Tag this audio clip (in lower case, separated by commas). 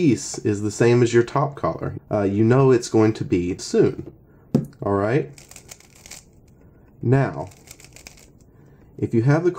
speech